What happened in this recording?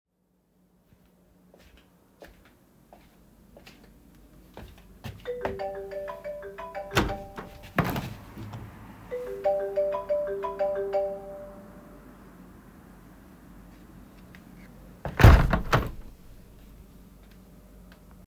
I walked toward the window while a phone was ringing nearby. I opened the window during the ringing, paused briefly, and then closed it again.